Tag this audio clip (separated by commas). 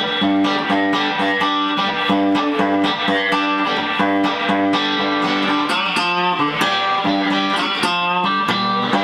Blues, Music, Strum, Acoustic guitar, Plucked string instrument, Musical instrument, Guitar